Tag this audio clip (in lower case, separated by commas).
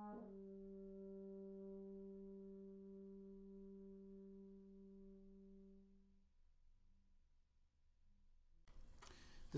french horn, speech